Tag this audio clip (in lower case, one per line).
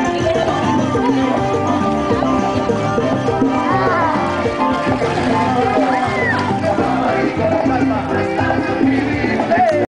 music
speech